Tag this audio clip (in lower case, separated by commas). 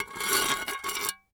dishes, pots and pans, glass, home sounds